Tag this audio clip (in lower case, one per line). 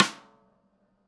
snare drum
musical instrument
percussion
music
drum